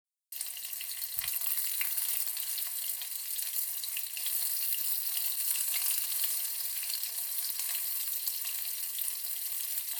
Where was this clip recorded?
in a kitchen